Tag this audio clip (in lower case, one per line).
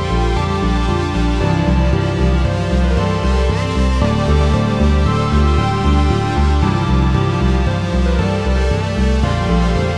music